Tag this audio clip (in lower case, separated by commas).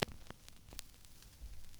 crackle